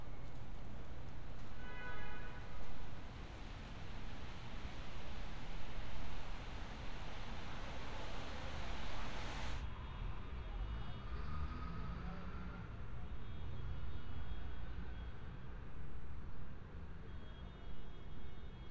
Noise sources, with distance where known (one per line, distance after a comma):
car horn, far